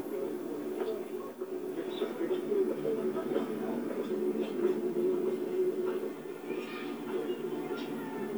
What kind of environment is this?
park